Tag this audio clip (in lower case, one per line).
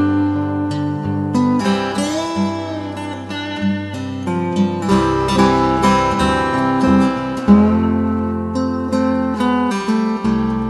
musical instrument
plucked string instrument
guitar
music